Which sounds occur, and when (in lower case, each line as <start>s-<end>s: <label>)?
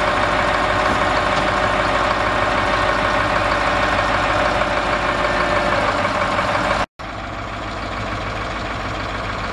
0.0s-6.9s: truck
1.2s-1.3s: tick
1.4s-1.5s: tick
7.1s-9.5s: truck